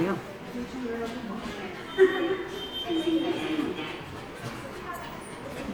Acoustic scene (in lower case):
subway station